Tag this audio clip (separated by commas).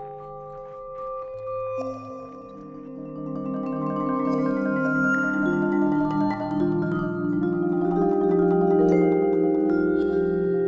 playing vibraphone